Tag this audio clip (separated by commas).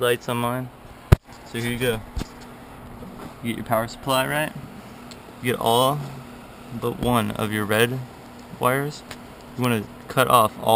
Speech